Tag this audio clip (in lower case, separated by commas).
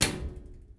domestic sounds, microwave oven